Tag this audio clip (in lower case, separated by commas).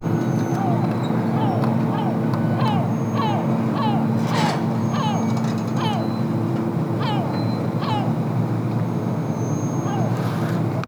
water, ocean